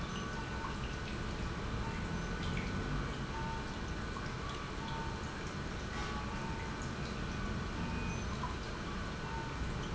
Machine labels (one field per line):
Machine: pump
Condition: normal